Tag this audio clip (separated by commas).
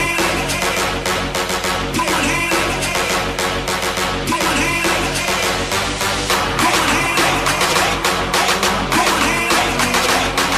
Electronic dance music, Music